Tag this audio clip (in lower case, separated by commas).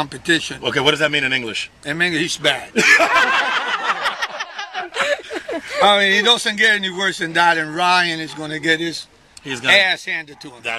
speech